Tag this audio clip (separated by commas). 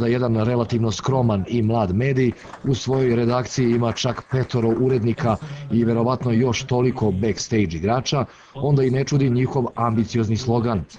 Speech